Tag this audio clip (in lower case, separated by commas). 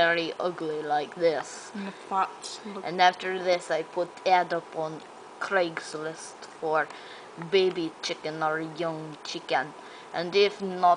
speech